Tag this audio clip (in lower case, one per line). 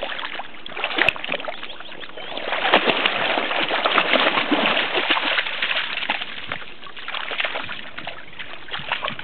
gurgling